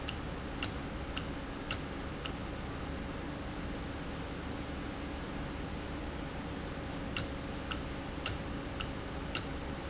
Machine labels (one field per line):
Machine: valve